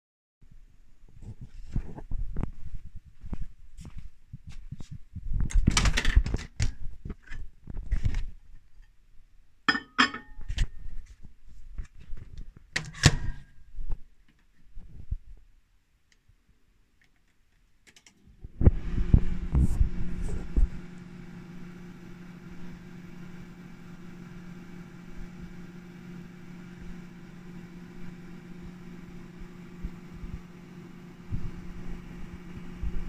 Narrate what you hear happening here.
I went to the microwave and opened it to put a bowl in. Then I turned on the microwave